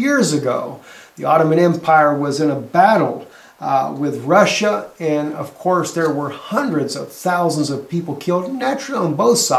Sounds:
Speech

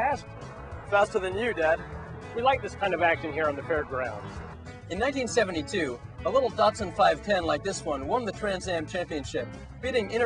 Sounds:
Music, Speech

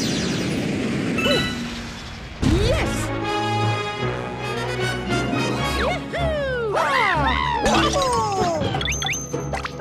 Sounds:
Speech, Music

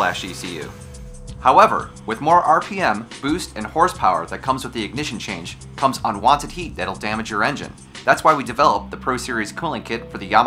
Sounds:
Speech, Music

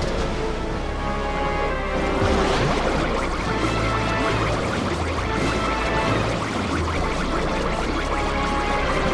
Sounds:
Music

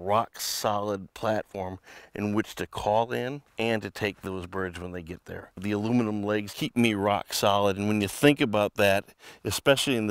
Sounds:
Speech

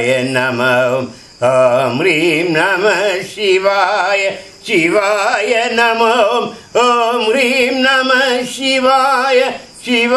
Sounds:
Mantra

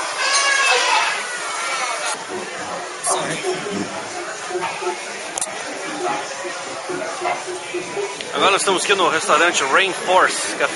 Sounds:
Speech

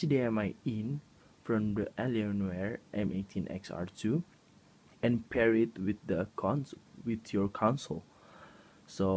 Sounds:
Speech

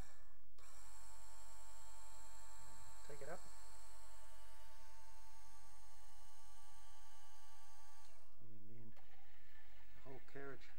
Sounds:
Speech

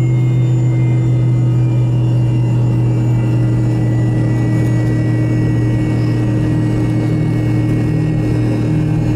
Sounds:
Heavy engine (low frequency), Vehicle, Engine, Aircraft

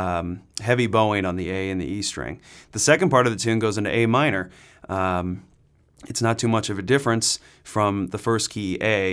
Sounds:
Speech

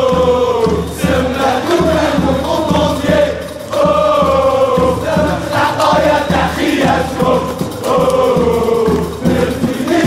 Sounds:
Music

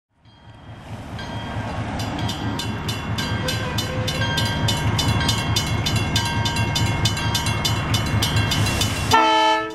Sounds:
Train horn, Train, Vehicle, Train whistle, Railroad car, outside, urban or man-made, honking

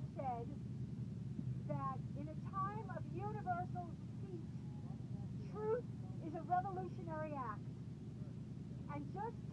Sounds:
monologue, Speech, Female speech

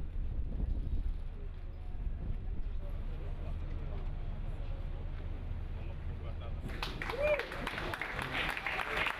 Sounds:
Speech

